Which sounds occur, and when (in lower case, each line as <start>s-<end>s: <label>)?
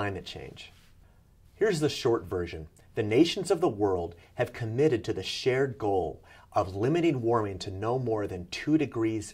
0.0s-9.3s: background noise
0.0s-0.8s: male speech
0.6s-1.0s: sound effect
1.5s-2.7s: male speech
2.9s-4.2s: male speech
4.4s-6.2s: male speech
6.5s-9.3s: male speech